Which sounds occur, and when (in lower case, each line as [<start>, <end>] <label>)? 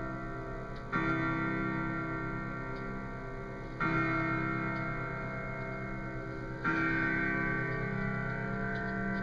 [0.00, 9.22] mechanisms
[0.41, 0.52] tick
[0.65, 0.77] tick
[1.66, 1.78] tick
[2.70, 2.80] tick
[3.66, 3.83] tick
[4.69, 4.78] tick
[5.67, 5.77] tick
[6.68, 6.78] tick
[7.64, 7.75] tick
[8.70, 8.79] tick